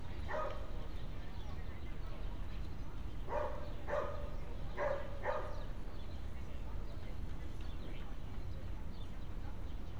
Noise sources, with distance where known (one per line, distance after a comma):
dog barking or whining